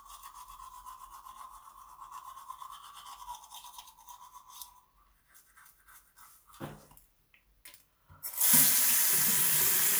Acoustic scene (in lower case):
restroom